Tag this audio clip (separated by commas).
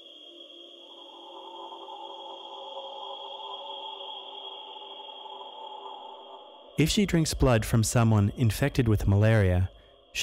Speech